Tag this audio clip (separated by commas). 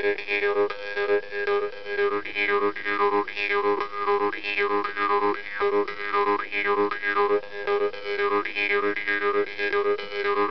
Music